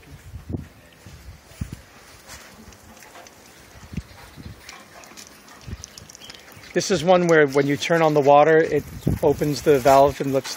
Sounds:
speech
outside, rural or natural

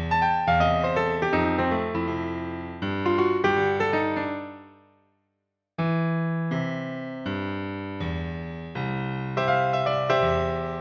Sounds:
playing glockenspiel

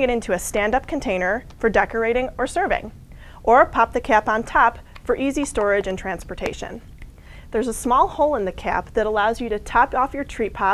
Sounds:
speech

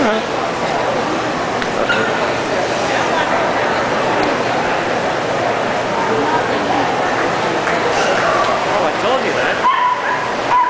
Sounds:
pets
bow-wow
animal
speech
dog
whimper (dog)

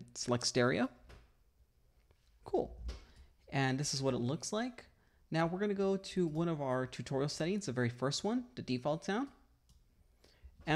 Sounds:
speech

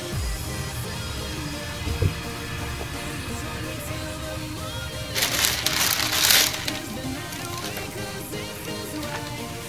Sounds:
music

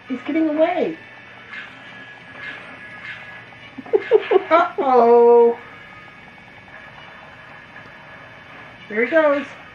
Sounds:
speech

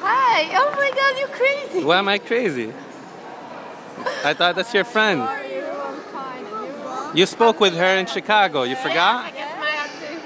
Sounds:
inside a public space
speech

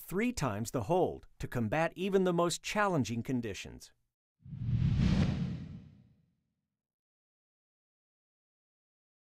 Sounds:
speech

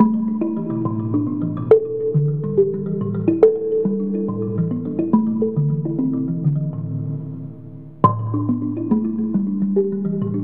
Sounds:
musical instrument
music

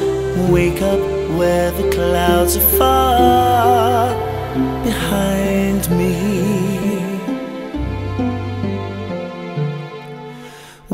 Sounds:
singing
music

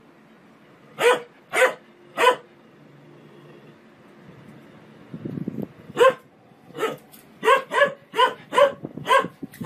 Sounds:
dog barking

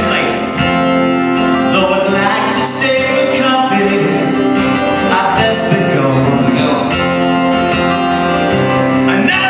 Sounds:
music

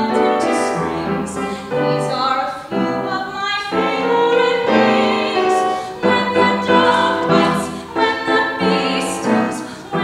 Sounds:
music
exciting music

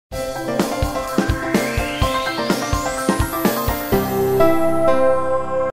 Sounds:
music

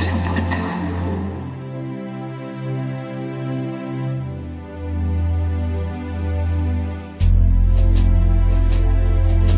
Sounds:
music

